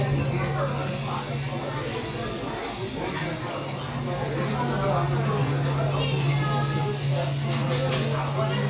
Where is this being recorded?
in a restaurant